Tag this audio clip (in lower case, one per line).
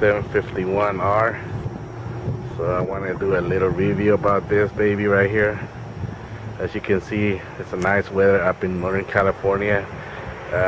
outside, urban or man-made
speech